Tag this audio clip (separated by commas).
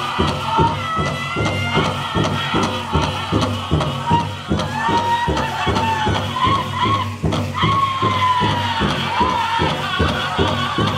Speech, Music